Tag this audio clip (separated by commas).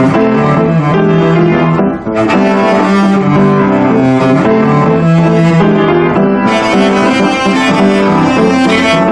Musical instrument, Cello, Music